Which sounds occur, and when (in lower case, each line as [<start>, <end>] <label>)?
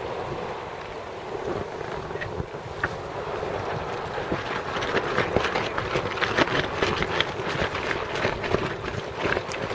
[0.01, 9.74] boat
[4.19, 9.74] wind